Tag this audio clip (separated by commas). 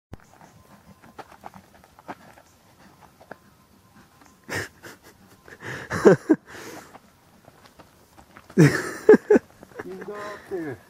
Speech, Walk